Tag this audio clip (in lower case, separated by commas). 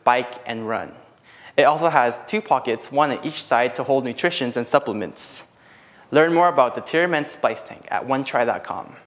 speech